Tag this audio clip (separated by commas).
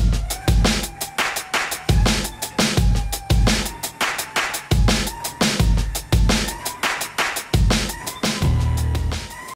Music